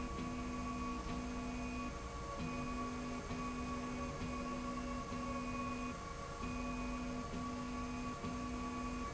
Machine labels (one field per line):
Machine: slide rail